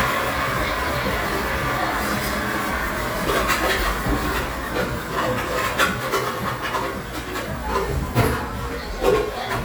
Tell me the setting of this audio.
cafe